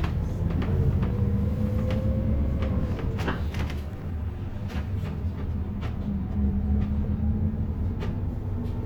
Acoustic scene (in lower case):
bus